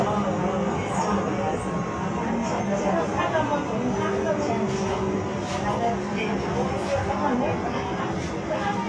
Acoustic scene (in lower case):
subway train